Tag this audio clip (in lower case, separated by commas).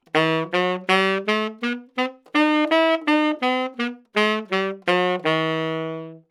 wind instrument, music, musical instrument